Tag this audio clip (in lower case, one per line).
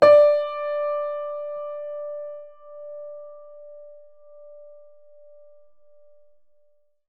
piano
musical instrument
music
keyboard (musical)